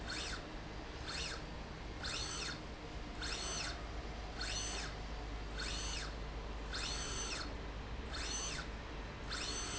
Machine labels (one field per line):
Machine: slide rail